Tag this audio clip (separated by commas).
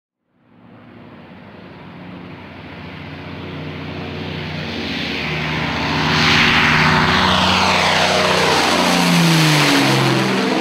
airplane flyby